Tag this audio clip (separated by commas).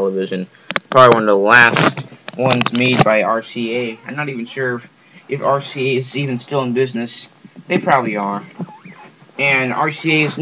Speech